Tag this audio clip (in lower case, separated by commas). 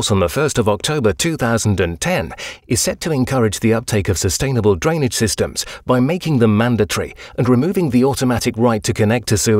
speech